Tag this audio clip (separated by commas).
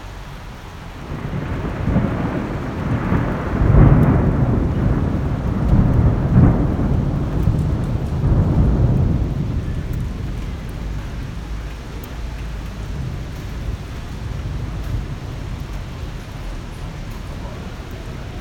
Thunderstorm, Rain, Water, Thunder